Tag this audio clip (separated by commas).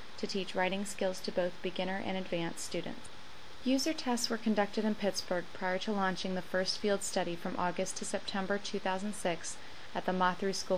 Speech